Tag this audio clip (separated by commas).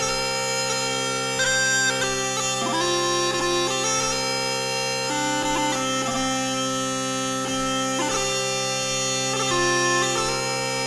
playing bagpipes